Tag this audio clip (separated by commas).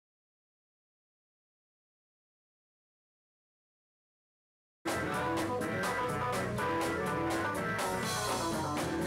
Singing, Music